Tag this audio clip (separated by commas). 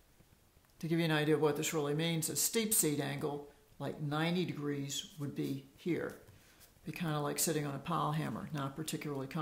Speech